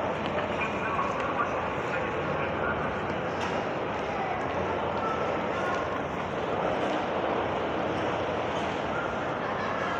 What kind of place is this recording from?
subway station